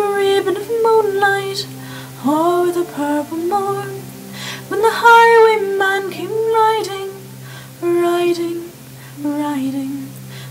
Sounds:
female singing, music

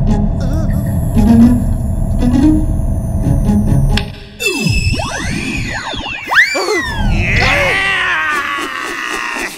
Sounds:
inside a large room or hall, music

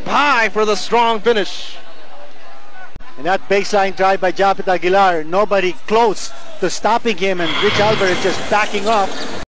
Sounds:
speech

